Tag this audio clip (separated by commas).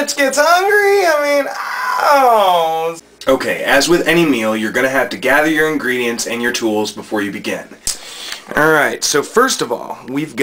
Speech